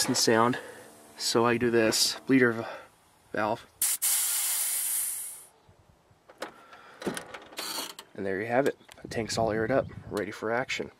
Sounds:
Speech

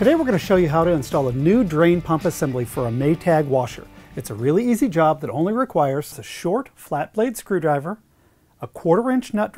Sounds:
Music, Speech

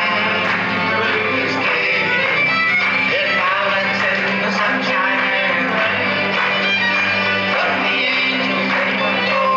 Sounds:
Singing, Music, inside a large room or hall

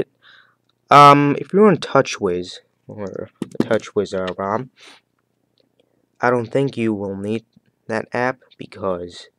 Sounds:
Speech

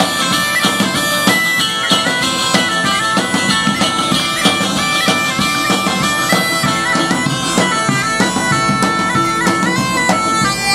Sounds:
playing bagpipes, woodwind instrument, Bagpipes

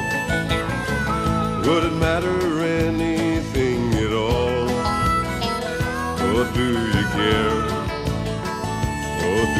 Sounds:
Music

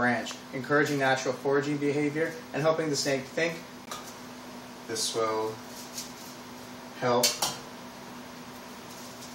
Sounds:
Speech, inside a small room

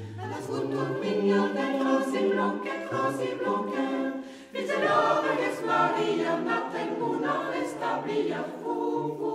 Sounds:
Mantra, Music

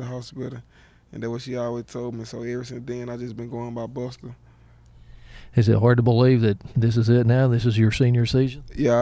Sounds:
Speech

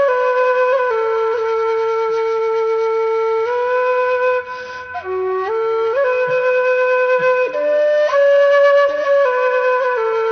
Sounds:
Music, Flute

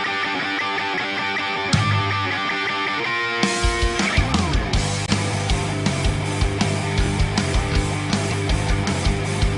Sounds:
Heavy metal, Music, Rock and roll

